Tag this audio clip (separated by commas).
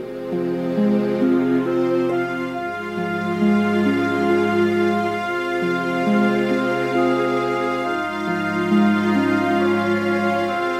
Background music, Music, Sad music